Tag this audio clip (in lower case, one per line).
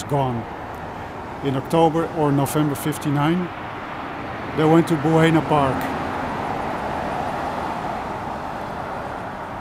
speech